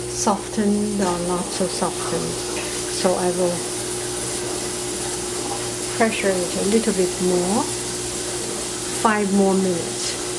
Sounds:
inside a small room, Speech

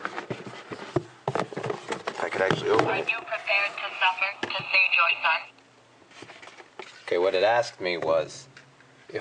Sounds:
Speech

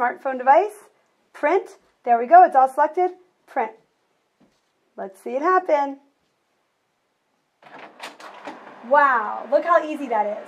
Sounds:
Speech, Printer

